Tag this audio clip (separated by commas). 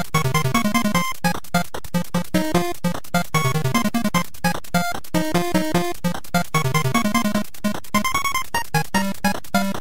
Video game music, Soundtrack music, Music